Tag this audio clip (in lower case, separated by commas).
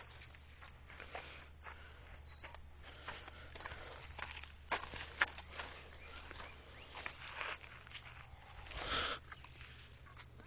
animal